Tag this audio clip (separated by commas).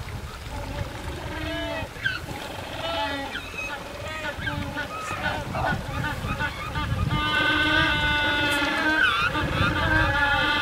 penguins braying